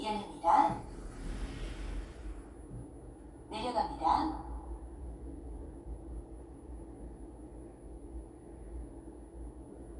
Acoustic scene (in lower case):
elevator